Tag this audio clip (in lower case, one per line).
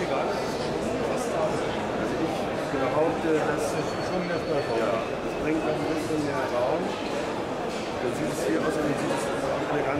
speech
television